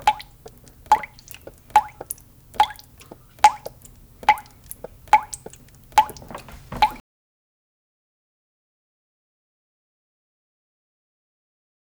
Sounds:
liquid, drip

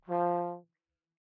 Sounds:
music, brass instrument, musical instrument

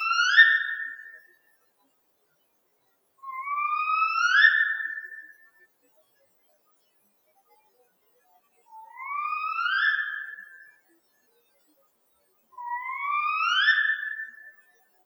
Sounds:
animal, wild animals, bird

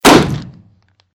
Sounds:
explosion, gunfire

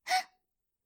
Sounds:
breathing, respiratory sounds, human voice, gasp

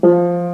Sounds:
keyboard (musical), piano, musical instrument, music

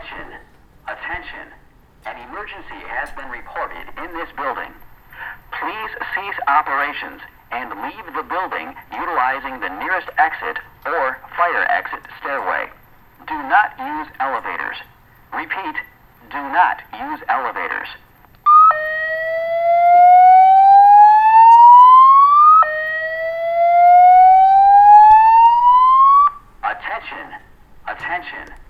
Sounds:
alarm

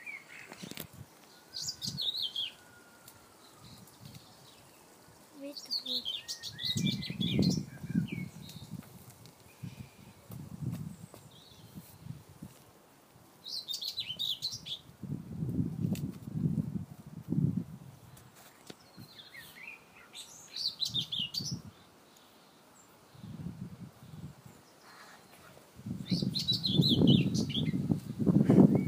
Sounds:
bird song, bird, animal, wild animals

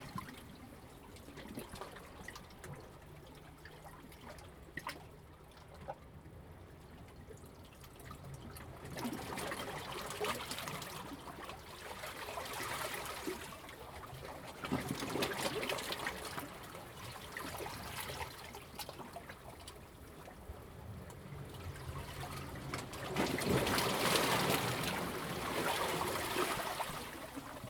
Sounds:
waves, ocean, water

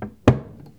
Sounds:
cupboard open or close, home sounds

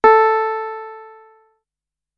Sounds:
keyboard (musical), music, musical instrument, piano

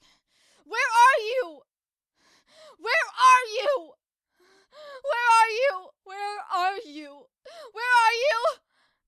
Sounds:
shout, human voice, yell, crying

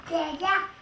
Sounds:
kid speaking, speech, human voice

